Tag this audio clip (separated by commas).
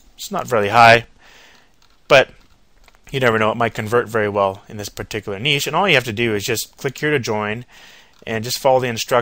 Speech